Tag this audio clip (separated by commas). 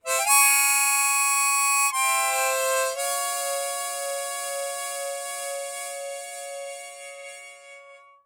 Musical instrument, Harmonica, Music